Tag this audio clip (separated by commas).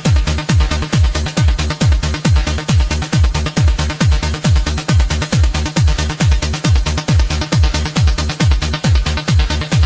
Music